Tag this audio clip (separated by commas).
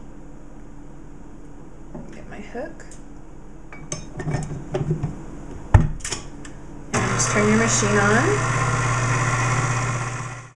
Cutlery, dishes, pots and pans